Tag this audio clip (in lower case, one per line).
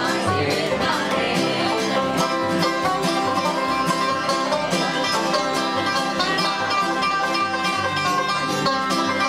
singing
country
guitar
music
bluegrass
banjo
musical instrument